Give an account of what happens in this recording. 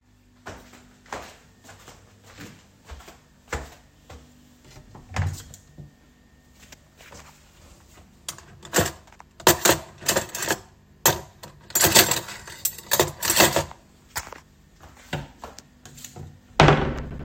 I walked to the drawer and opened it. I took out a piece of cutlery and then closed the drawer. After that, I walked away.